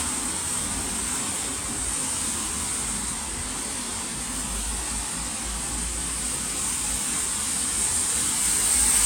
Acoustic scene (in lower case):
street